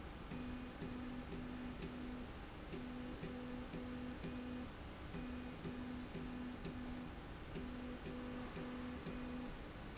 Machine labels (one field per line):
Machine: slide rail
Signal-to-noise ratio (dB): 6 dB